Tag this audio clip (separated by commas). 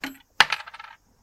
Coin (dropping), Domestic sounds